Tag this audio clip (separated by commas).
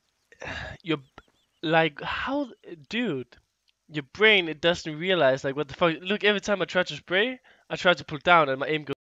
Speech